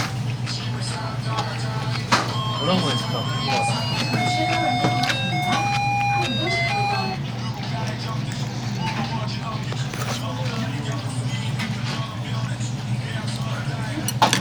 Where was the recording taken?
in a restaurant